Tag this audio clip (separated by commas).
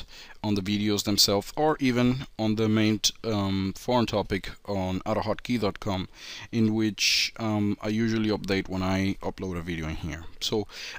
Speech